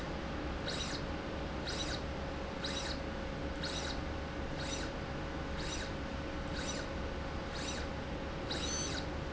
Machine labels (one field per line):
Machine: slide rail